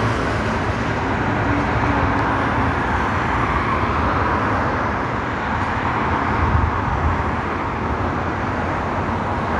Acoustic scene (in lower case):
street